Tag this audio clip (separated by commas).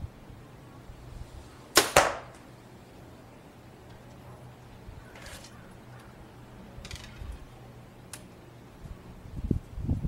Arrow